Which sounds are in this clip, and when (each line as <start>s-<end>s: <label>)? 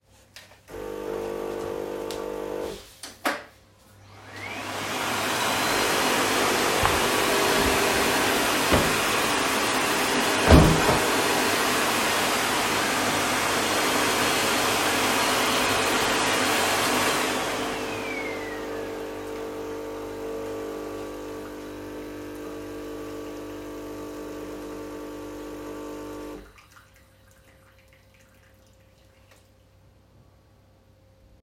0.4s-3.6s: coffee machine
4.2s-18.7s: vacuum cleaner
8.7s-8.8s: window
10.4s-10.9s: window
18.7s-26.6s: coffee machine